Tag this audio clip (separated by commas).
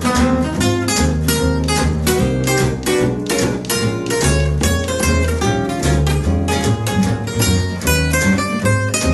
Guitar, Music, Swing music, Plucked string instrument, Musical instrument